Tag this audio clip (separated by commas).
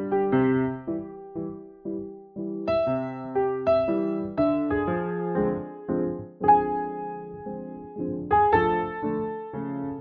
Music